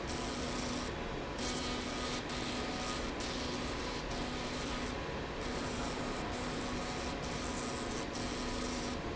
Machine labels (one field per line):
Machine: slide rail